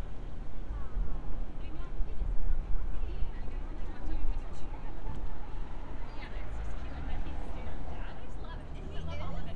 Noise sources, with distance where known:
person or small group talking

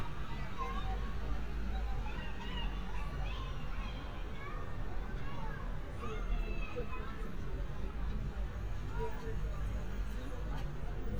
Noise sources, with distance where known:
person or small group shouting, far

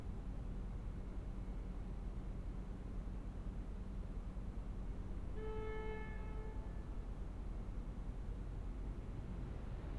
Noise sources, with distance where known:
car horn, far

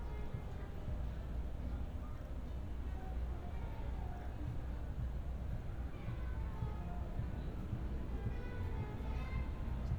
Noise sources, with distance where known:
music from a fixed source

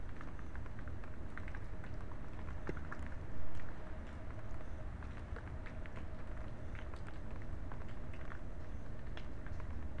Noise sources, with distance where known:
background noise

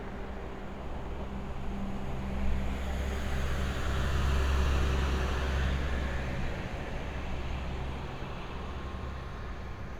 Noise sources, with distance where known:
engine of unclear size, near

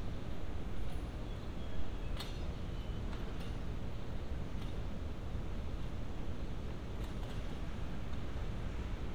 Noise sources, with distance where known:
non-machinery impact, far

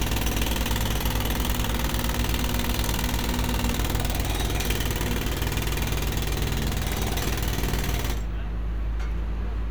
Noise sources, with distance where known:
rock drill, near

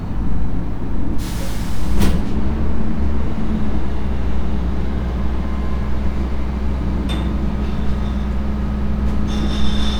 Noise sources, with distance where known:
large-sounding engine, near

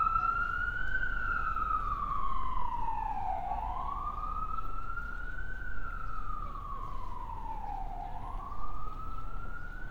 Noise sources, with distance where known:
siren, near

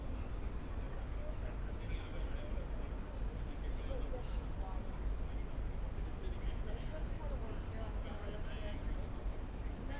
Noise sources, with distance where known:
person or small group talking, near

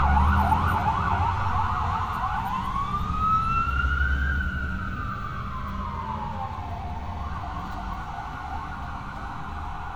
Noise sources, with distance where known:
siren

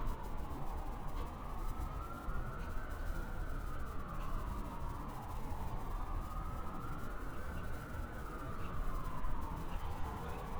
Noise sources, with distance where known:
siren, far

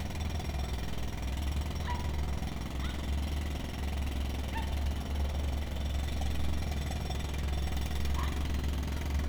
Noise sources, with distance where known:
jackhammer, near
dog barking or whining, far

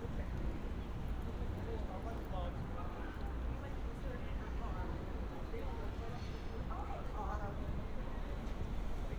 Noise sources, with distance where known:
person or small group talking, far

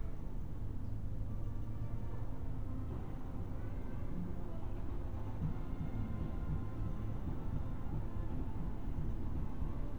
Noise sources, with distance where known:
music from an unclear source, far

